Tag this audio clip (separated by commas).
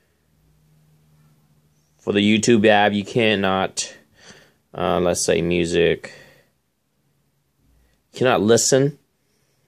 Speech